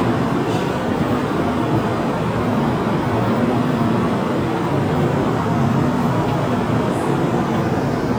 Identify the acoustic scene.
subway station